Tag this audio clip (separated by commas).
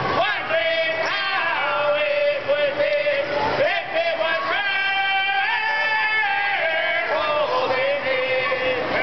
Music, Male singing